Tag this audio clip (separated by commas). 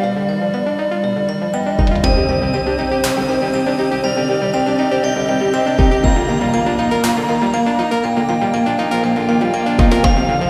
Music